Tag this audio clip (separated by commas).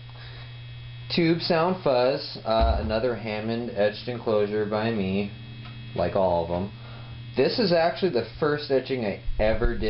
Speech